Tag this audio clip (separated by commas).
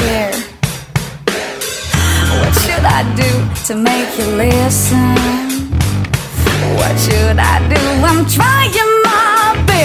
Music